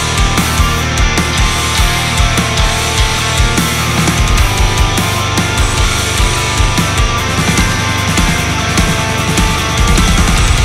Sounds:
music

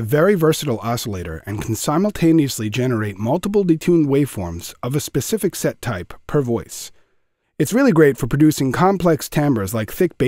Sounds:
speech

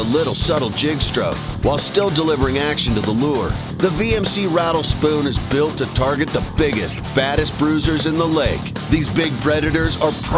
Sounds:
music
speech

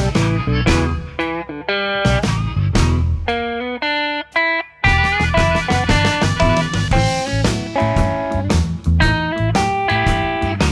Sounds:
musical instrument
playing electric guitar
blues
music
strum
guitar
plucked string instrument
electric guitar

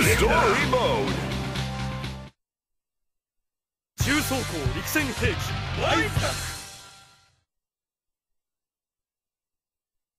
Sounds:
speech
music

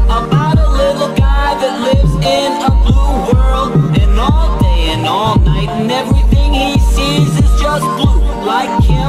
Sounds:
electronic music
dubstep
music

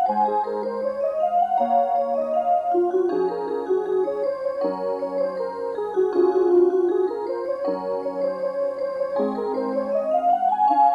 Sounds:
music

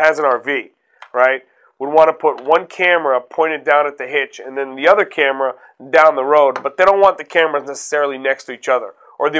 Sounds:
speech

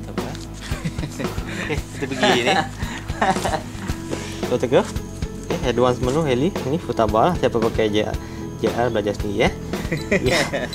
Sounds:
music
speech

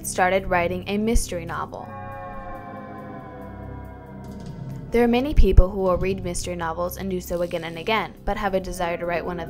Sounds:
music
speech

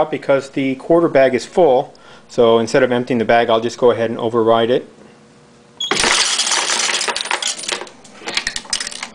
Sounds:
coin (dropping)

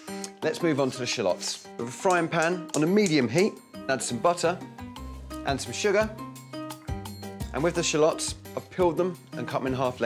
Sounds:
speech
music

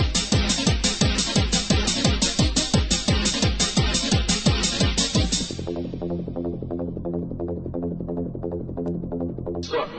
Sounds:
electronic music
music

